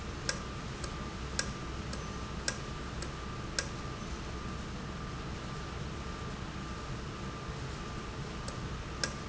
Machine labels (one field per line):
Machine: valve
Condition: normal